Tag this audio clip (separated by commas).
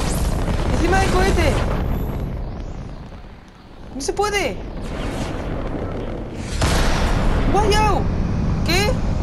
missile launch